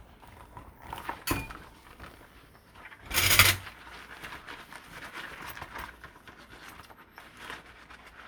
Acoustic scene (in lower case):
kitchen